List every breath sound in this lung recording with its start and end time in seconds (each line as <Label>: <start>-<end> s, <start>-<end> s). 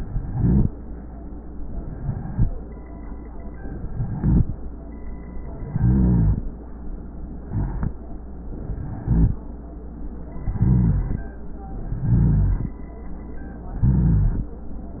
Inhalation: 0.00-0.67 s, 1.82-2.49 s, 3.91-4.57 s, 5.56-6.47 s, 7.44-7.97 s, 9.05-9.37 s, 10.47-11.27 s, 11.90-12.70 s, 13.83-14.55 s
Rhonchi: 0.00-0.67 s, 1.82-2.49 s, 3.91-4.57 s, 5.56-6.47 s, 7.44-7.97 s, 9.05-9.37 s, 10.47-11.27 s, 11.90-12.70 s, 13.83-14.55 s